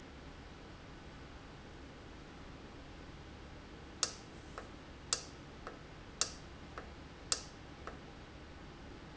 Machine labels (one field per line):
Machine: valve